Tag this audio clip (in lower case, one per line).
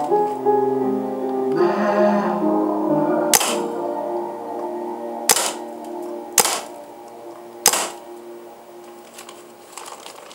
music